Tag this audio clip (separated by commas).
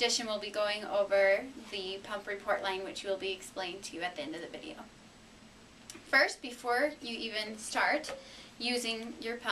Speech